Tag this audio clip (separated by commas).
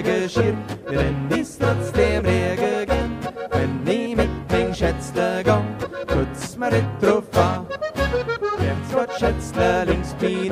yodelling